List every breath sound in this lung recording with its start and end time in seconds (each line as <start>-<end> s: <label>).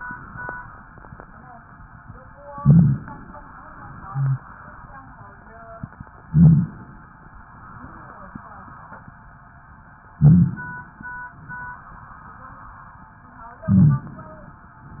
2.64-3.08 s: crackles
2.64-3.32 s: inhalation
6.26-6.77 s: inhalation
6.26-6.77 s: crackles
10.19-10.62 s: crackles
10.19-10.87 s: inhalation
13.68-14.71 s: inhalation
13.72-14.13 s: crackles